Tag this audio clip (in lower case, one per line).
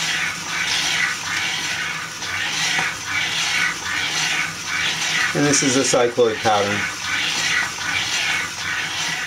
speech